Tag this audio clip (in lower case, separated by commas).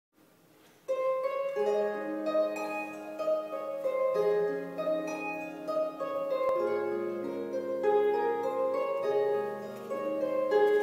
playing harp